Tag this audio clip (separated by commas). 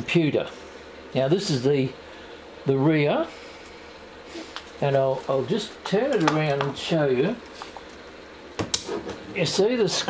Speech, inside a small room